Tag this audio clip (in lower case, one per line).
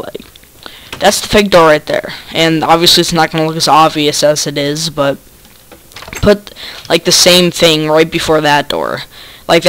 speech
door